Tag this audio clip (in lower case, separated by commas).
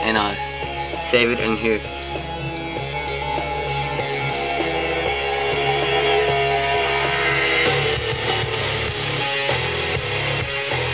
music, speech, radio